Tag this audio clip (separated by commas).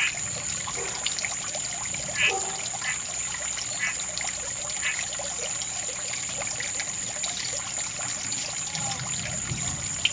frog croaking